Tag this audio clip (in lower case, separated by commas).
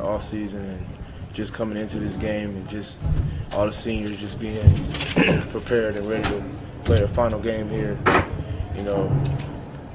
speech